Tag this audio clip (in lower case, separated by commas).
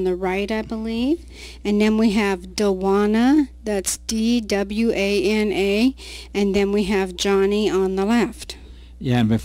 speech